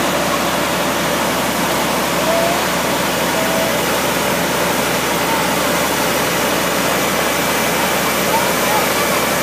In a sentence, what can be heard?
Running water with faint voices in the back